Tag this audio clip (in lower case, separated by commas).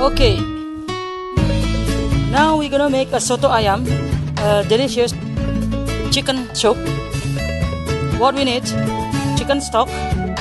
music, speech